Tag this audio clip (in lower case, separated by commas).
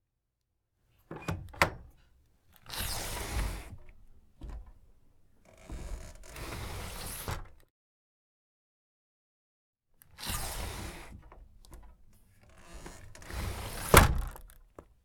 home sounds, door, sliding door